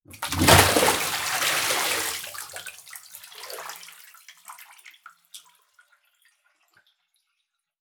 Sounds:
Liquid, Bathtub (filling or washing), home sounds, splatter

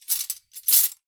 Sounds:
silverware, home sounds

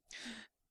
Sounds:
Gasp, Breathing, Respiratory sounds

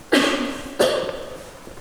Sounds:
Cough, Respiratory sounds

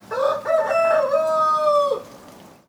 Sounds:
Animal, Fowl, livestock, rooster

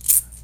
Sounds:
Rattle (instrument), Percussion, Rattle, Music, Musical instrument

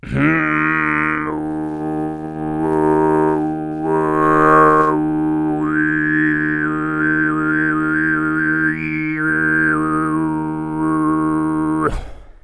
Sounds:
Human voice, Singing

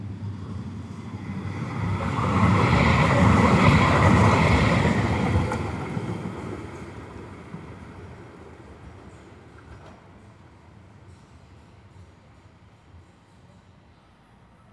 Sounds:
Vehicle

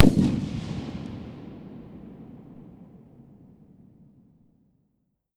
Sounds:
Fireworks, Explosion

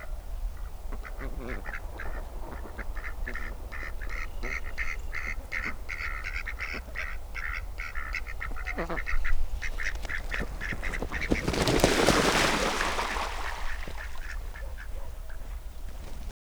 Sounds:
Fowl, Animal, livestock

